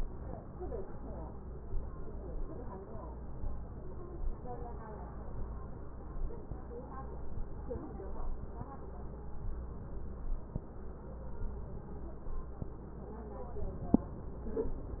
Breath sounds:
Inhalation: 1.65-2.77 s, 3.38-4.30 s, 5.12-6.29 s, 11.37-12.60 s, 13.45-14.38 s

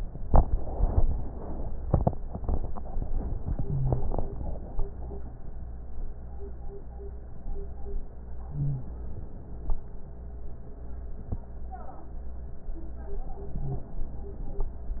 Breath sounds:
Wheeze: 3.69-4.00 s, 8.56-8.87 s, 13.62-13.85 s

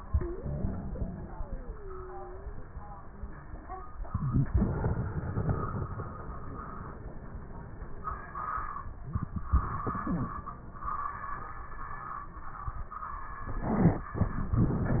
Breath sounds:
Inhalation: 3.90-4.49 s, 8.87-9.51 s, 13.44-14.13 s
Exhalation: 0.00-2.61 s, 4.52-5.98 s, 9.51-10.43 s, 14.13-15.00 s
Wheeze: 0.00-2.61 s
Crackles: 9.51-10.43 s

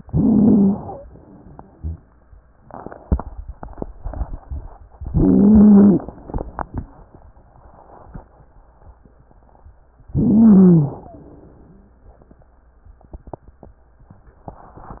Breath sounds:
Inhalation: 0.00-1.04 s, 5.02-6.06 s, 10.14-11.18 s
Wheeze: 0.00-1.04 s, 5.02-6.06 s, 10.14-11.18 s

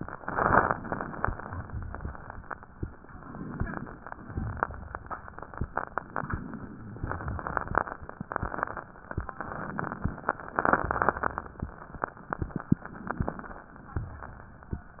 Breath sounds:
Inhalation: 0.26-1.28 s, 3.06-3.96 s, 6.08-7.05 s, 12.86-13.72 s
Exhalation: 1.32-2.24 s, 4.24-5.29 s, 7.09-8.05 s, 10.55-11.51 s, 13.86-14.78 s
Crackles: 1.32-2.24 s, 4.26-5.30 s, 7.09-8.05 s, 10.55-11.51 s, 13.86-14.78 s

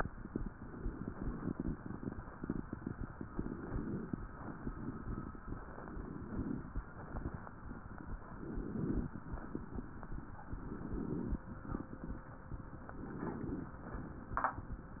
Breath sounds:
Inhalation: 3.30-4.16 s, 5.90-6.76 s, 8.35-9.20 s, 10.59-11.44 s, 12.98-13.83 s

